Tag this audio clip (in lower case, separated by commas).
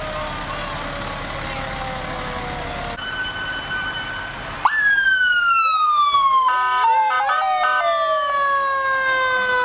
siren, emergency vehicle, fire engine